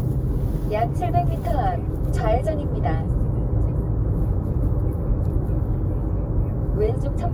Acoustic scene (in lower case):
car